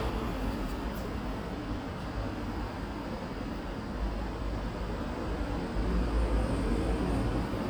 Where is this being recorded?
in a residential area